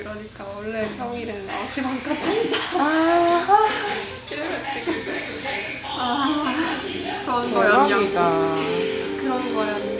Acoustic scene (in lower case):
restaurant